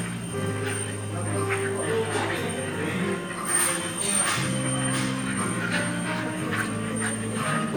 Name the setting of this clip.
cafe